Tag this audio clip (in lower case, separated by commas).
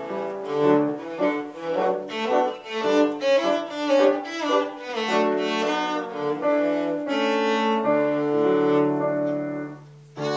musical instrument, music, violin, cello